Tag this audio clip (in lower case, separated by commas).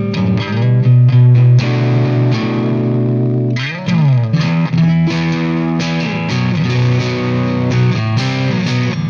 musical instrument, music, electric guitar, bass guitar, guitar, plucked string instrument, strum, acoustic guitar